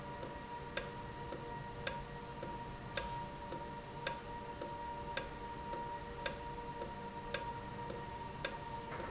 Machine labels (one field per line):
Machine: valve